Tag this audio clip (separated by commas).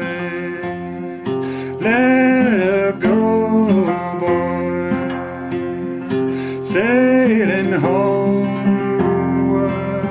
Music